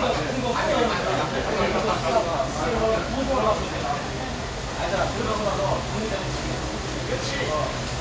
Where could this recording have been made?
in a restaurant